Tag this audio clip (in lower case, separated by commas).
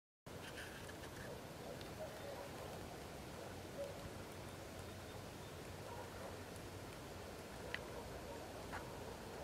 woodpecker pecking tree